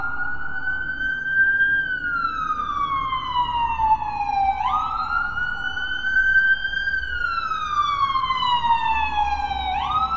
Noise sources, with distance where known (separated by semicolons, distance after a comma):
siren, near